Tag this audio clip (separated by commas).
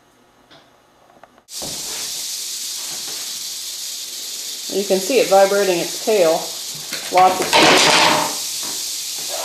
Snake, Hiss